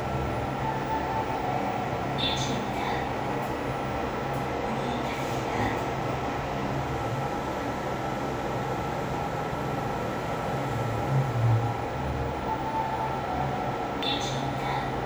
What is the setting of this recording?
elevator